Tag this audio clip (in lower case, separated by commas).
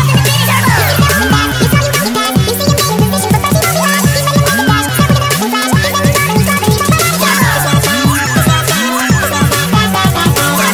music